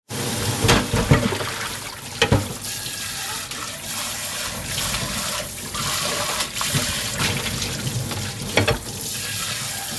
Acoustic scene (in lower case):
kitchen